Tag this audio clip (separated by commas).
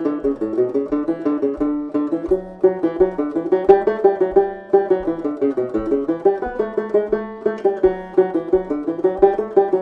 Music, Musical instrument, Cello